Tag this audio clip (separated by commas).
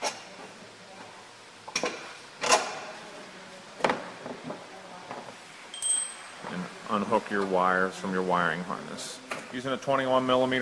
Speech